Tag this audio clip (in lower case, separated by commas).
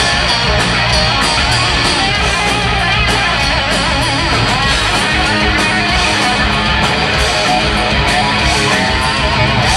acoustic guitar, music, bass guitar, guitar, musical instrument, strum, playing bass guitar